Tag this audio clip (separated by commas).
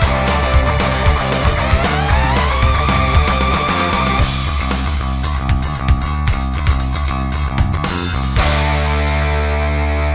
Progressive rock, Music